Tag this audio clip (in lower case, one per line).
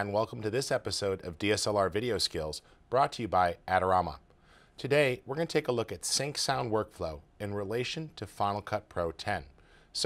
speech